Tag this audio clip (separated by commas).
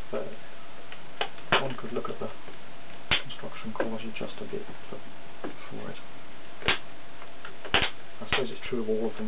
inside a small room, Speech